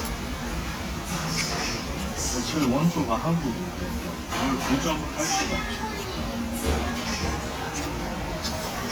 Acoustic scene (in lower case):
restaurant